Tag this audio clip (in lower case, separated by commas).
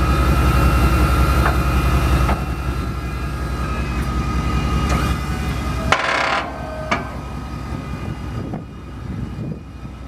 vehicle